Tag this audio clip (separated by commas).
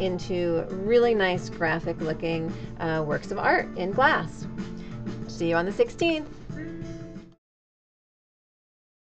Music, Speech